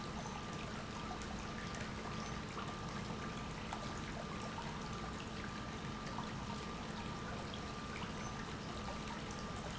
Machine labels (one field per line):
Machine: pump